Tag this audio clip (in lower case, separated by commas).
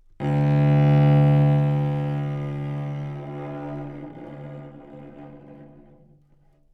musical instrument, music, bowed string instrument